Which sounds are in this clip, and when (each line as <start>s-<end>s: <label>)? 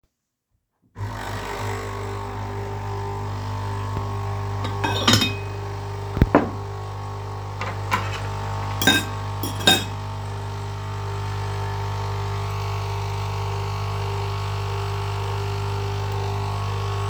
0.9s-17.1s: coffee machine
4.6s-5.5s: cutlery and dishes
6.1s-6.6s: cutlery and dishes
7.5s-10.0s: cutlery and dishes